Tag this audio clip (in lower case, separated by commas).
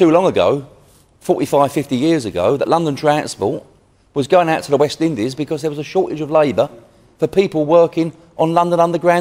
speech